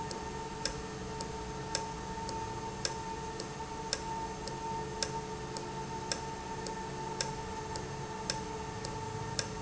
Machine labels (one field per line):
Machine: valve